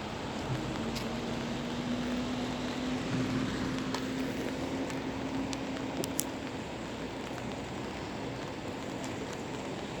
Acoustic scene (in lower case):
street